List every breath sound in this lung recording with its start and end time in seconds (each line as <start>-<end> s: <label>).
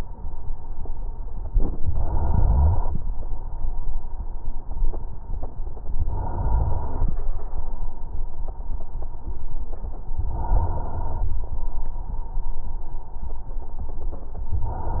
1.50-3.00 s: inhalation
6.05-7.18 s: inhalation
10.23-11.36 s: inhalation
14.62-15.00 s: inhalation